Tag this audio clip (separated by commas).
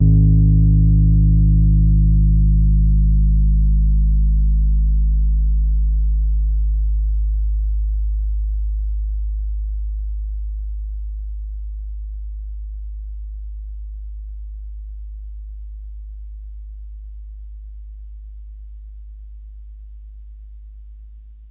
Music, Musical instrument, Piano, Keyboard (musical)